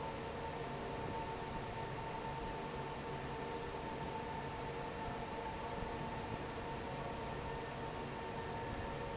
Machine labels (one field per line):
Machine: fan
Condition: normal